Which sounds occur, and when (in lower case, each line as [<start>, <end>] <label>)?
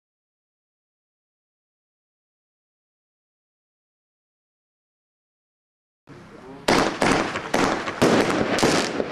[6.04, 9.11] background noise
[6.08, 6.65] male speech
[6.64, 7.37] fireworks
[7.47, 7.86] fireworks
[7.99, 8.39] fireworks
[8.52, 8.99] fireworks
[9.11, 9.11] fireworks